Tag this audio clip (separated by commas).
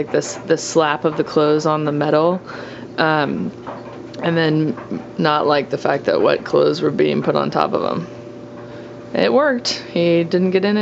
Speech